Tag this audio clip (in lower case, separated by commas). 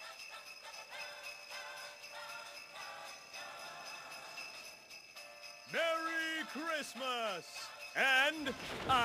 speech, jingle bell